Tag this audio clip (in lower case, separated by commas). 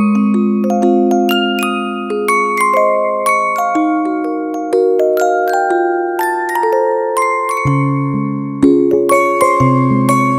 playing vibraphone